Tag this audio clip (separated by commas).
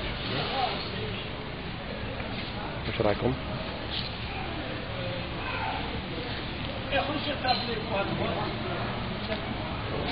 Speech